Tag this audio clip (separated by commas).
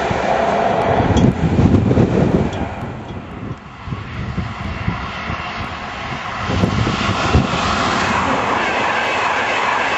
outside, rural or natural, Vehicle, train wagon, Rail transport, Train